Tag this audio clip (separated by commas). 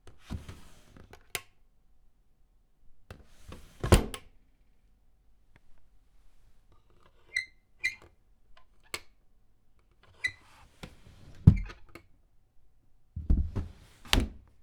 Drawer open or close, home sounds